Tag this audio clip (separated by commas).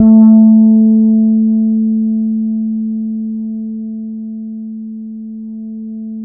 Guitar, Plucked string instrument, Musical instrument, Bass guitar, Music